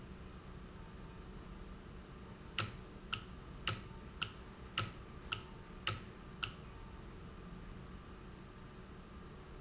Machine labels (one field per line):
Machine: valve